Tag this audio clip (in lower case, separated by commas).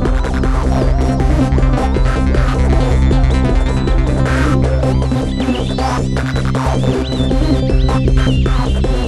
techno, music, electronic music